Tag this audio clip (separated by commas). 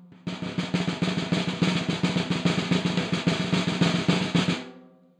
Music, Snare drum, Drum, Musical instrument, Percussion